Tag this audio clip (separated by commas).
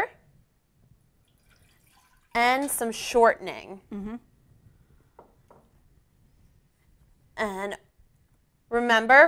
Speech, inside a small room